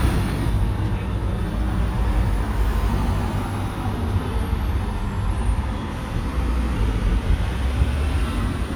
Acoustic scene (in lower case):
street